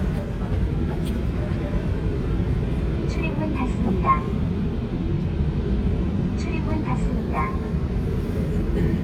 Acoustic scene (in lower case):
subway train